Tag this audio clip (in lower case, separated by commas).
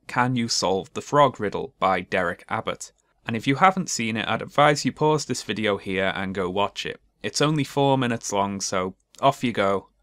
speech